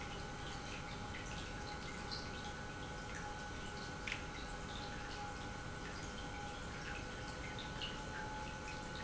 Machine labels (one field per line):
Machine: pump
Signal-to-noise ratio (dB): 6 dB